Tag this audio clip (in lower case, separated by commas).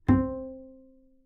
bowed string instrument, music, musical instrument